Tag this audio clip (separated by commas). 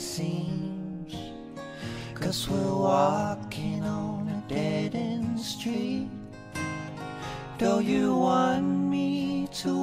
Middle Eastern music, Music, Sad music, Independent music